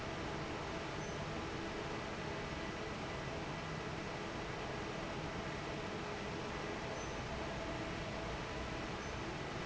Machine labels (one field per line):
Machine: fan